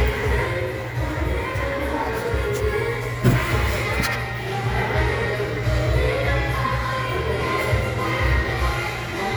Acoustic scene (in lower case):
crowded indoor space